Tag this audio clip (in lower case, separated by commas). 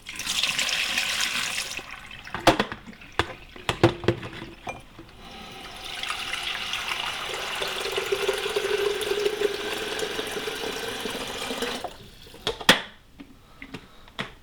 water tap, home sounds